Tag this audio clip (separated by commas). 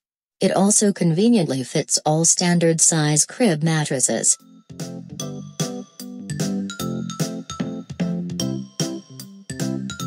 Speech, Music